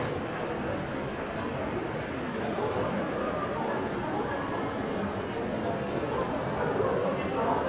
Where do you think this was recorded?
in a crowded indoor space